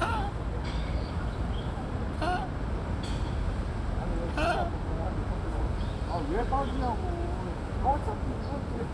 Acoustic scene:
park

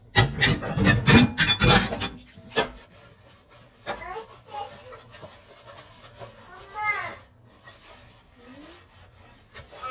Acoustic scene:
kitchen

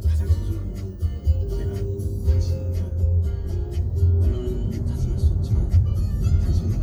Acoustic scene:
car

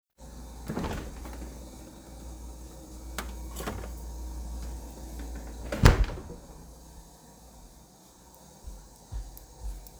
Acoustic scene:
kitchen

